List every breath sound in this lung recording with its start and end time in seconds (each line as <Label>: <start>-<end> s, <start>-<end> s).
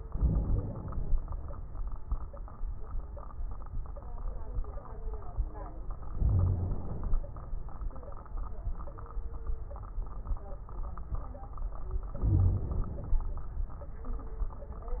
Inhalation: 0.07-1.12 s, 6.16-7.21 s, 12.15-13.20 s
Wheeze: 6.16-6.85 s, 12.23-12.66 s
Crackles: 0.07-1.12 s